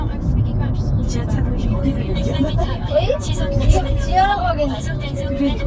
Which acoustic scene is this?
car